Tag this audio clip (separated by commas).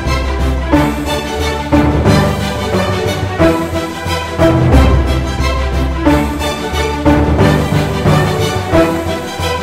Theme music